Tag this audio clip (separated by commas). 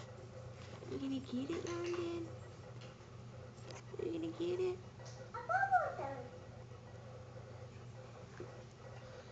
Speech, inside a small room, kid speaking